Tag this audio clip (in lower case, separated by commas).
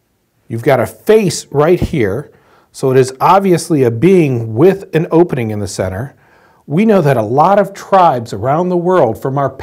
speech